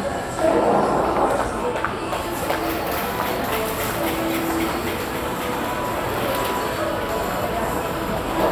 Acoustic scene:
crowded indoor space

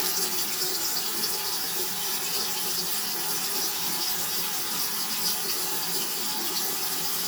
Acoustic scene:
restroom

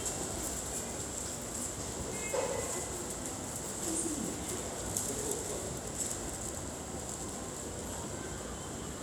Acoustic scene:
subway station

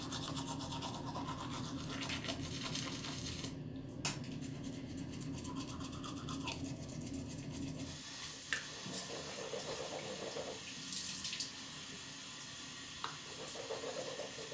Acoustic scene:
restroom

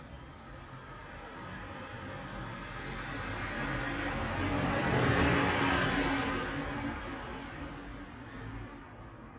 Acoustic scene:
street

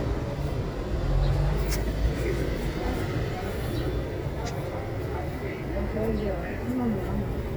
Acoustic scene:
residential area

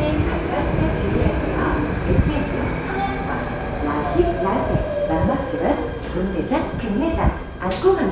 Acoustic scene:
subway station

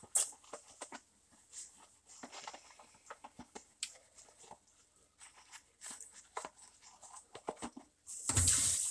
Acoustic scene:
restroom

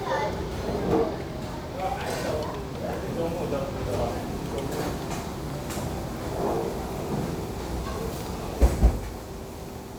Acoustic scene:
restaurant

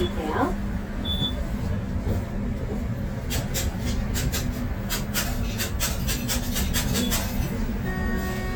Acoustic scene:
bus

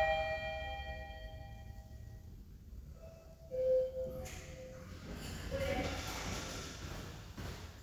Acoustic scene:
elevator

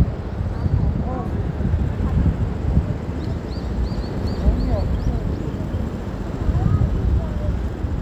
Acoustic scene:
street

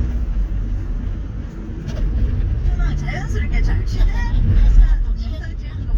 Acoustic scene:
car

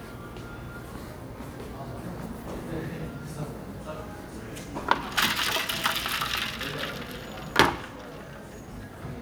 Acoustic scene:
cafe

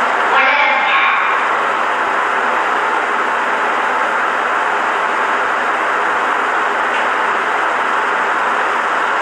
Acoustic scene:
elevator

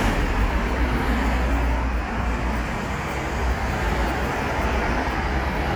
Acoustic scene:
street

